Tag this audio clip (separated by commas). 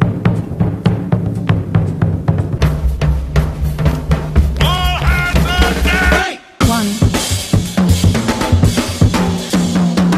Snare drum, Music